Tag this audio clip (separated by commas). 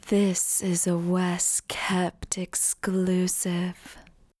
Human voice, woman speaking, Speech